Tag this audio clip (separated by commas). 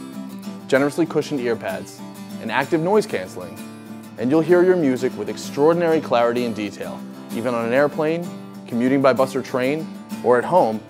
Speech, Music